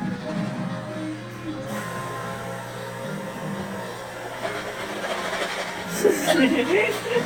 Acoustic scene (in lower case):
cafe